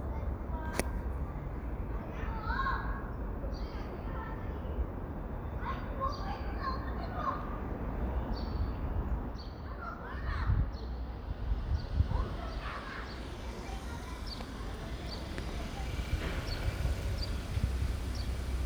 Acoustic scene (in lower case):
residential area